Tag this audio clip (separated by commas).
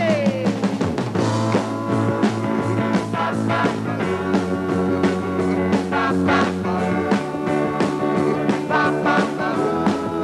Music, Rock and roll